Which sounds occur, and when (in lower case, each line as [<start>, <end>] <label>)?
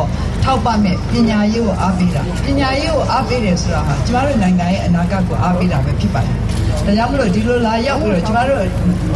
[0.00, 9.15] mechanisms
[0.42, 6.21] female speech
[2.28, 2.44] generic impact sounds
[6.44, 6.83] generic impact sounds
[6.69, 8.79] female speech
[7.17, 7.39] generic impact sounds
[8.15, 8.38] generic impact sounds